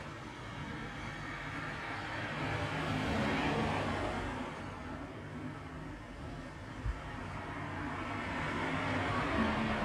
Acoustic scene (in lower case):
street